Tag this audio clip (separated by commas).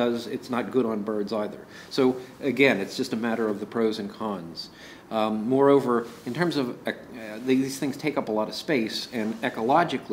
Speech, inside a small room